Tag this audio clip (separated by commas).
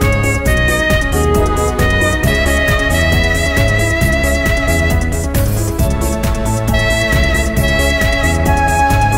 Electronic music, Techno, Music